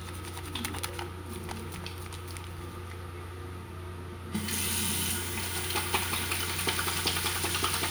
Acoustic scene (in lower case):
restroom